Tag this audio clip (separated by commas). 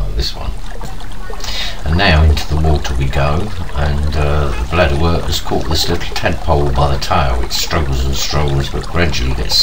Speech